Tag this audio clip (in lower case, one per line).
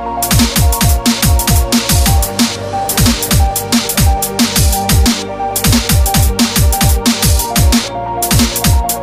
music
sound effect